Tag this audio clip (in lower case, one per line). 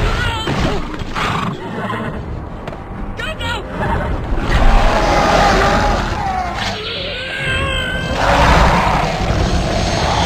speech